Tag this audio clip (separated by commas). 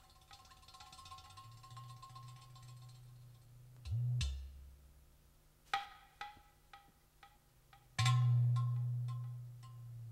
Music